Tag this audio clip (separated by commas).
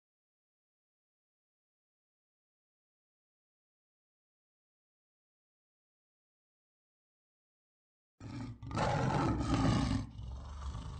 Roar